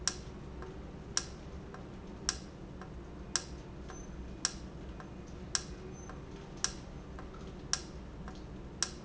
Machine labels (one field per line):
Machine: valve